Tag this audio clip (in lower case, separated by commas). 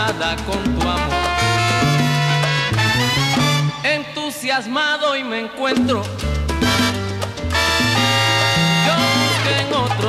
music, salsa music